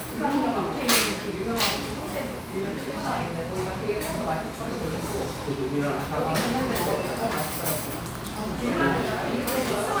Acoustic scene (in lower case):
crowded indoor space